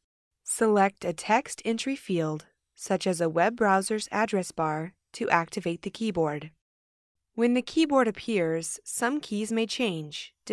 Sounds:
Speech

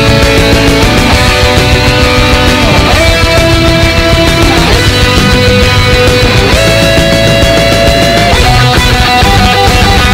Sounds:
Heavy metal, Music

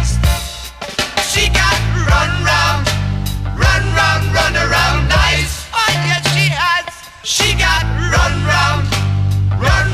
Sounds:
Music

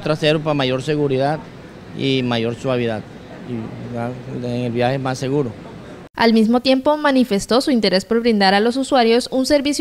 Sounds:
Speech

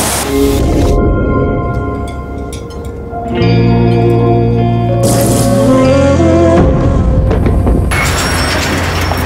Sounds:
Music

